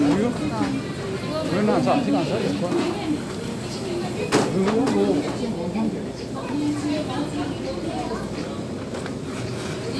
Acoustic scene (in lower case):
crowded indoor space